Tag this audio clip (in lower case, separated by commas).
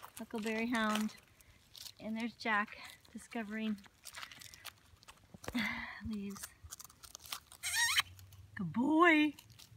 speech, dog, domestic animals, outside, urban or man-made, animal